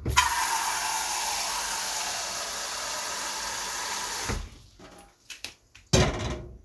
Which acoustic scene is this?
kitchen